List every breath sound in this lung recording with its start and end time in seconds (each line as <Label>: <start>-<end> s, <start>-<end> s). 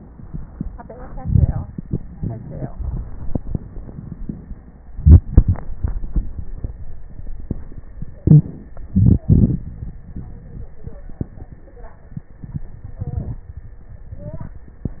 Inhalation: 1.11-1.82 s, 8.17-8.83 s
Exhalation: 8.86-10.00 s
Wheeze: 2.12-2.72 s, 8.17-8.50 s
Crackles: 1.11-1.82 s, 8.86-10.00 s